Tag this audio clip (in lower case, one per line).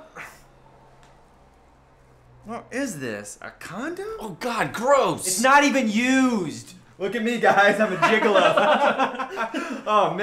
speech